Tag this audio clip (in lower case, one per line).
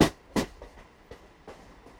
train
vehicle
rail transport